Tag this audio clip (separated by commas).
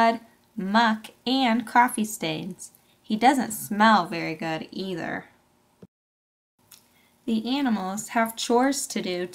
Speech